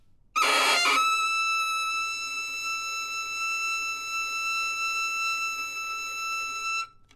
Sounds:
Bowed string instrument, Musical instrument, Music

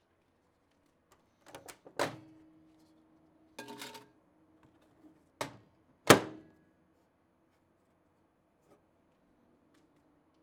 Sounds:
home sounds, Microwave oven

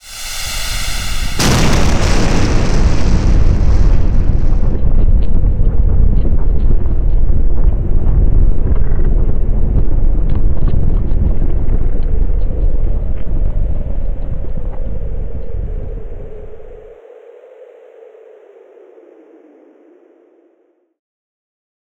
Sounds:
Thunderstorm

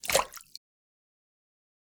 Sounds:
Liquid, splatter

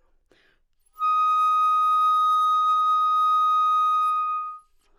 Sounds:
Wind instrument, Musical instrument, Music

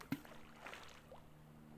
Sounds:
Liquid, splatter

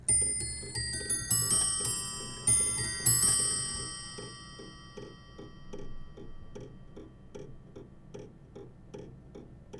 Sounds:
Clock, Mechanisms

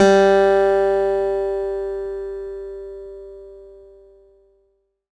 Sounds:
Acoustic guitar, Musical instrument, Music, Guitar, Plucked string instrument

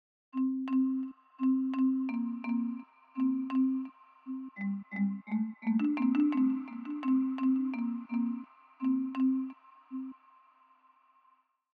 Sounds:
xylophone, Percussion, Mallet percussion, Music, Musical instrument

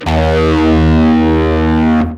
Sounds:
Music, Bass guitar, Musical instrument, Guitar, Plucked string instrument

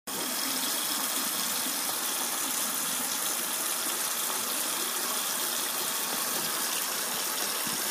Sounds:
home sounds, Water tap

